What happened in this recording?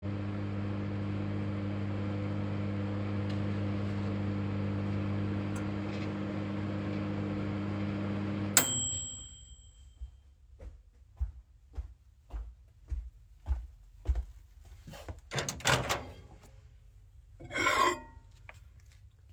The microwave had been running and dinged once it had finished. I then walked over to the microwave, opened it and removed the cup inside